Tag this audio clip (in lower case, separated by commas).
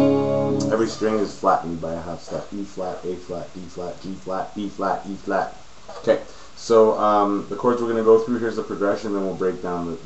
speech, strum, guitar, acoustic guitar, music, musical instrument